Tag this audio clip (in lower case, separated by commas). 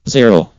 male speech, human voice, speech